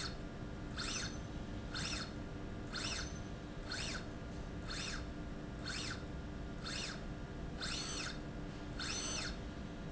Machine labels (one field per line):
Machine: slide rail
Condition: normal